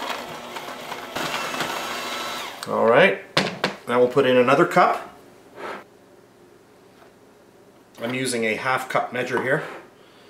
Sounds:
Blender

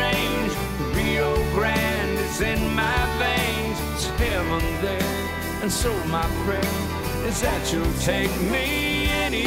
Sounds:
Music

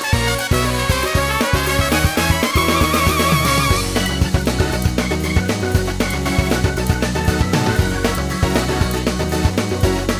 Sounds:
Music

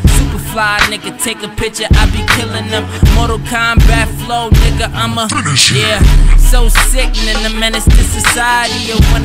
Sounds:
Music, Violin, Musical instrument

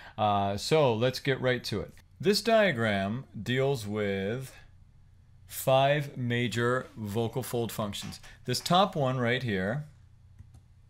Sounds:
Speech

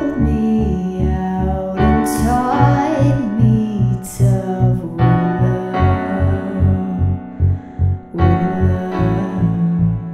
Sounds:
Female singing, Music

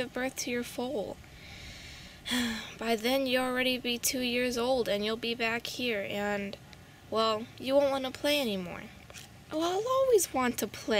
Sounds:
Speech

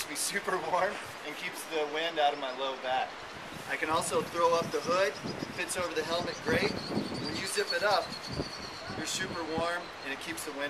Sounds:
Speech

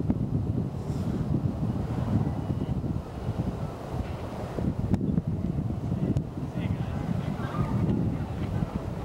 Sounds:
Speech

